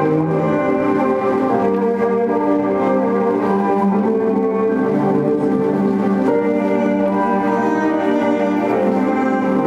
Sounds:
organ, music, inside a large room or hall

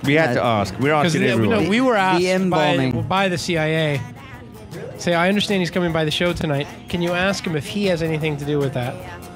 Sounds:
speech, music

